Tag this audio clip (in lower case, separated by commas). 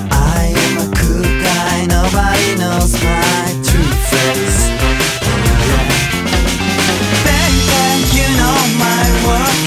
music